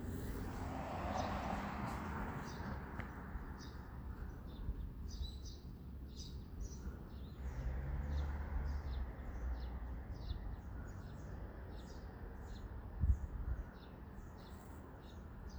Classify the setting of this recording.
residential area